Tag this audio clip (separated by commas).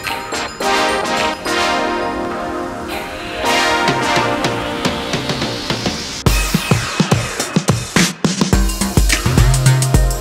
Bird, Pigeon